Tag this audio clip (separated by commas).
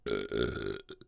Burping